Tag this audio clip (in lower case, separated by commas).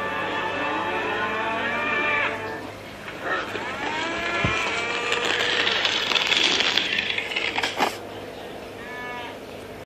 livestock, cattle mooing, moo, bovinae